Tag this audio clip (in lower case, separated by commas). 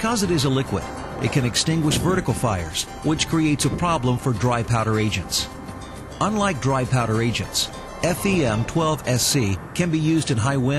speech, music